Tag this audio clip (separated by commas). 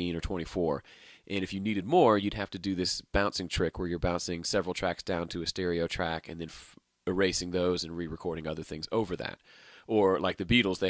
Speech